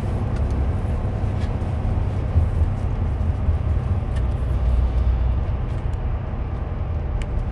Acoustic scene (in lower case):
car